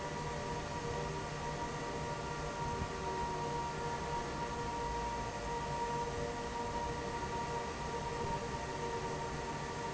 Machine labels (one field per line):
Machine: fan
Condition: normal